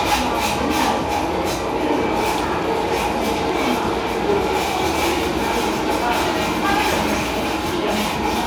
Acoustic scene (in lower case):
cafe